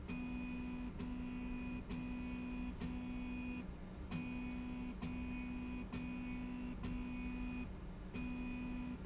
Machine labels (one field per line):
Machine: slide rail